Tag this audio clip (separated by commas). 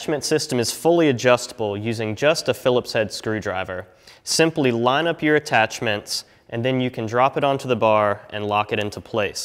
Speech